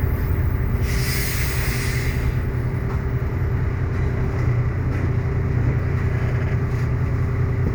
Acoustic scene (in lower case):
bus